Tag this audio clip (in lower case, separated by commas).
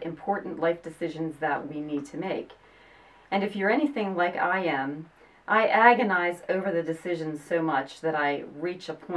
speech